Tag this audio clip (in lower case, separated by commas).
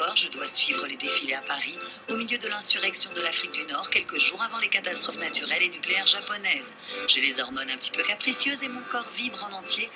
music, speech